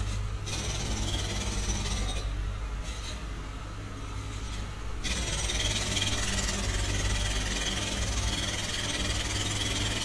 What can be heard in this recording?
jackhammer